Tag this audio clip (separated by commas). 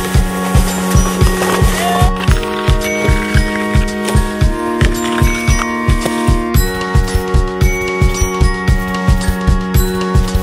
Skateboard